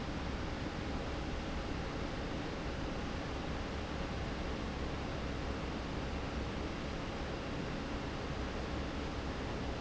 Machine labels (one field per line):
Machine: fan